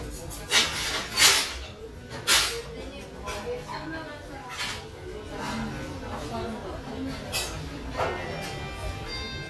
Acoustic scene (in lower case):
restaurant